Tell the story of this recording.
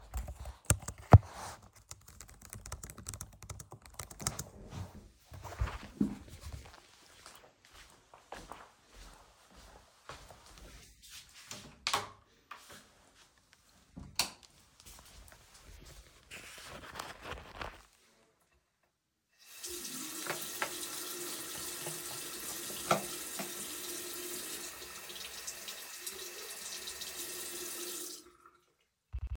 I'm typing, then I get up and walk to the bathroom. I turn on the light, open my bottle, turn on the tap and pour some water in my bottle.